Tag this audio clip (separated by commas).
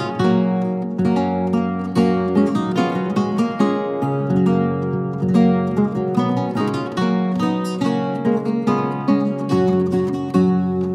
Guitar, Musical instrument, Acoustic guitar, Strum, Music